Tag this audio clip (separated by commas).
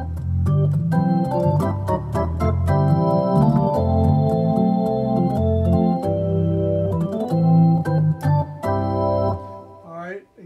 playing hammond organ